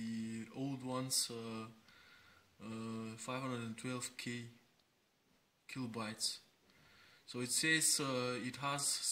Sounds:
Speech

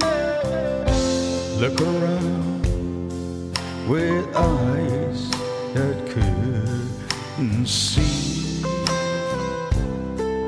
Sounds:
Music

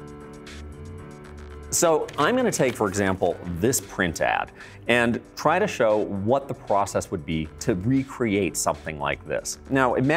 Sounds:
Speech, Music

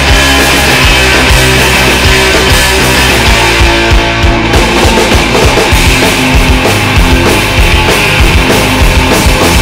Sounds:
Music

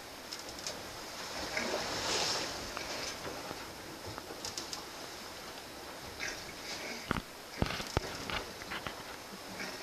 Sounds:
Vehicle, Water vehicle, Sailboat, Water

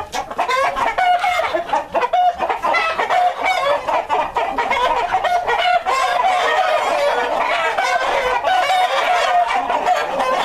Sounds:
chicken clucking, rooster, Cluck, Fowl

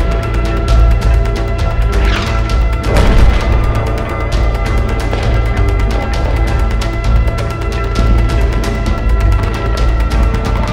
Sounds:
Music

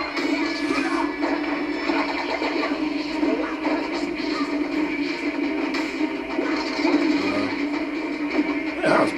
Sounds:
Speech

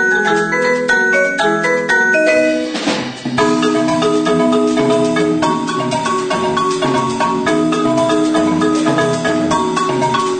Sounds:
Music, xylophone

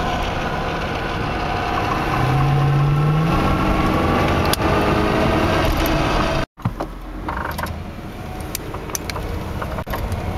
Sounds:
Motor vehicle (road), Vehicle, Car

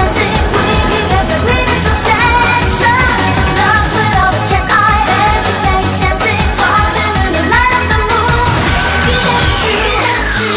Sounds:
Music

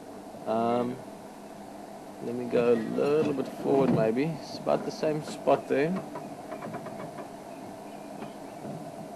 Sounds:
Bird, Animal, Speech

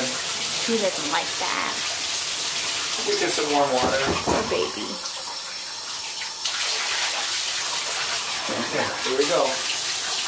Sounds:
Speech

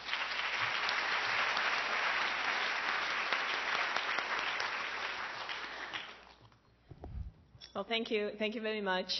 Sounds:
Speech, monologue, woman speaking

